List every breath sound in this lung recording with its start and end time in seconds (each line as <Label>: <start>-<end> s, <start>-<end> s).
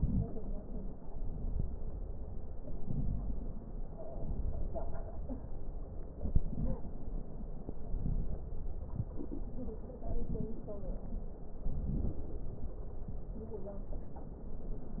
Inhalation: 2.59-4.05 s, 6.13-6.99 s
Wheeze: 6.53-6.88 s
Crackles: 2.59-4.05 s, 6.13-6.99 s